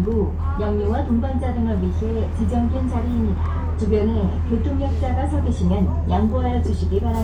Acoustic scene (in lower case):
bus